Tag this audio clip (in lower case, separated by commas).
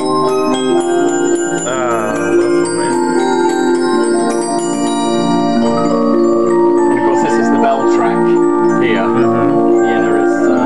music, speech, soundtrack music